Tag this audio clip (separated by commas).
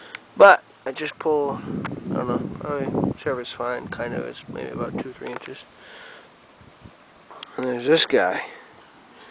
outside, rural or natural, Speech